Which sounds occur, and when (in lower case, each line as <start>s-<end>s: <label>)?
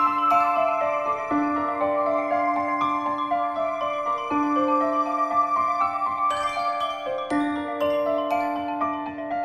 0.0s-9.4s: music